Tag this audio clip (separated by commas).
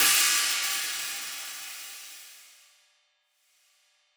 Music, Musical instrument, Percussion, Hi-hat, Cymbal